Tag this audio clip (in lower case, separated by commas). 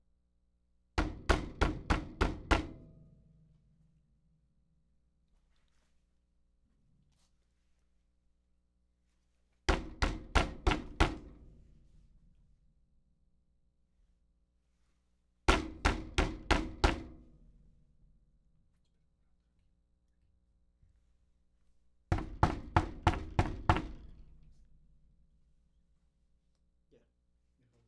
domestic sounds, knock, door